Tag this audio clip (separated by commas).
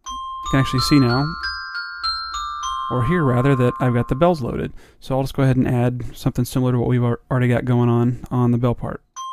Glockenspiel, xylophone, Mallet percussion